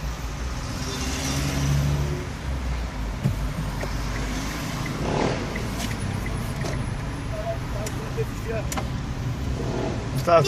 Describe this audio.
A car passing by followed by speech